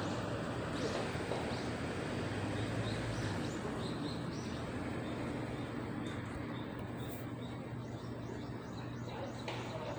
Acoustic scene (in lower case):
residential area